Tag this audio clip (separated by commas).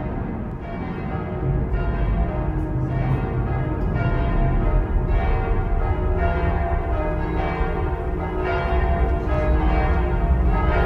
Music